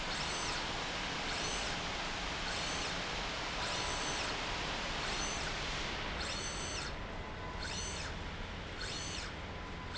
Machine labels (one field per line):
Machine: slide rail